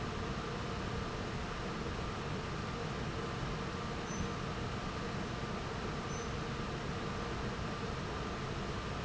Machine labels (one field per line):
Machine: fan